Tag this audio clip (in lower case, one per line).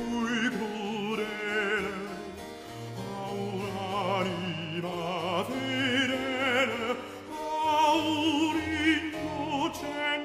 music
opera